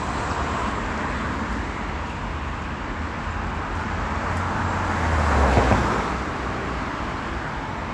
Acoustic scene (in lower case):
street